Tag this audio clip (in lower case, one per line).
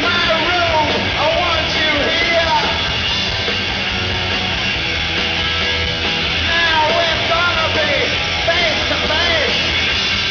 music